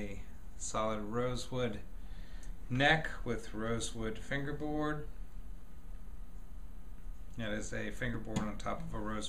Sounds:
Speech

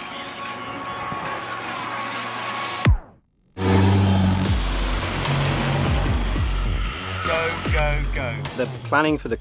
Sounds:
Car passing by, Speech, Music

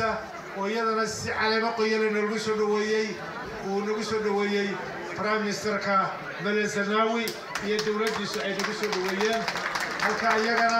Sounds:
man speaking, Speech

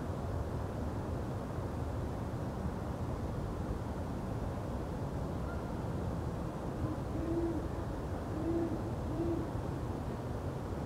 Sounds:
owl hooting

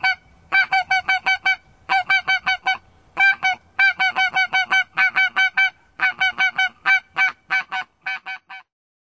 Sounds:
Honk

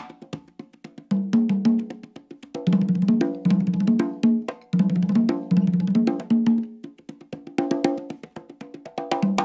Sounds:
Percussion, Drum

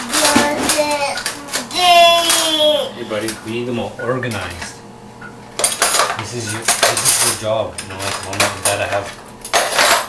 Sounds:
Cutlery

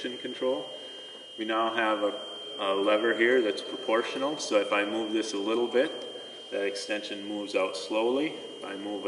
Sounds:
Speech

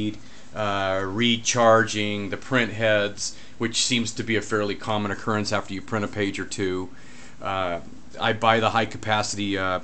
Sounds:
Speech

